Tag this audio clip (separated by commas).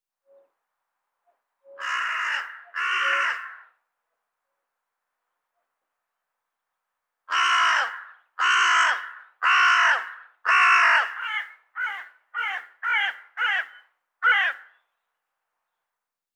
Bird, Animal, Wild animals, Crow